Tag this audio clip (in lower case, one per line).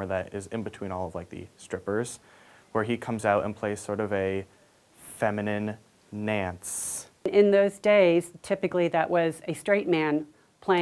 speech